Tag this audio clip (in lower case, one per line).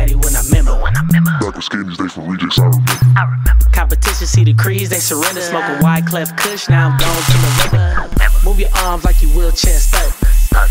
music